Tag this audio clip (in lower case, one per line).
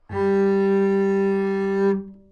musical instrument
bowed string instrument
music